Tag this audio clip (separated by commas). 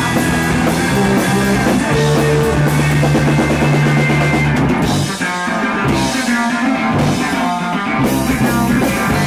Music, Punk rock